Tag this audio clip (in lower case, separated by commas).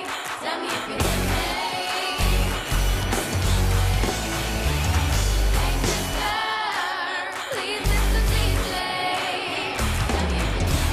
heavy metal, rock and roll, music